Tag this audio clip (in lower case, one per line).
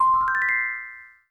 telephone
bell
ringtone
alarm
chime